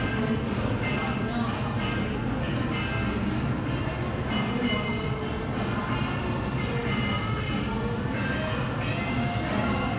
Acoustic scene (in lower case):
crowded indoor space